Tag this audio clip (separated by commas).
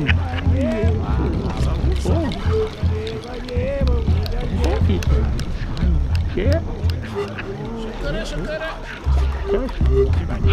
Crowd